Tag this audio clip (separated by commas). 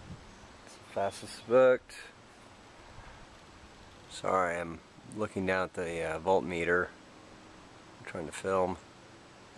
Speech